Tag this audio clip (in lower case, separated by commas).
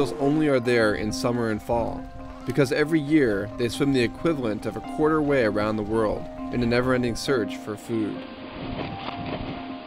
music, speech